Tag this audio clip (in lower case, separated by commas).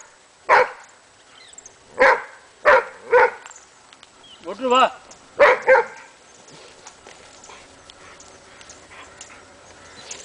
bow-wow, dog bow-wow, speech, pets, dog